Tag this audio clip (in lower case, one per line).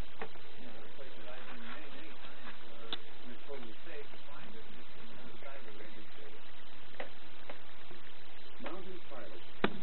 speech